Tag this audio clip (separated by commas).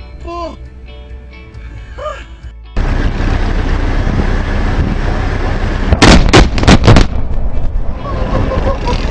volcano explosion